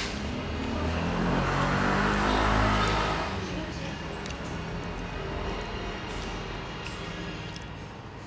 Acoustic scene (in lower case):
restaurant